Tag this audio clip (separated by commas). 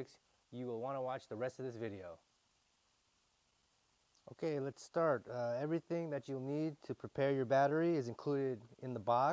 Speech